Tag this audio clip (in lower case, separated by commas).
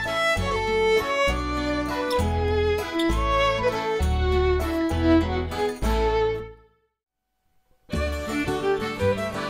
musical instrument, fiddle, music